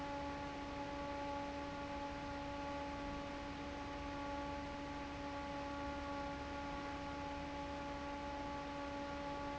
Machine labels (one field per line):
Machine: fan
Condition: normal